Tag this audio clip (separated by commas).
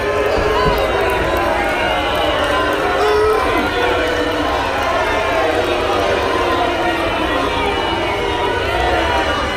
people booing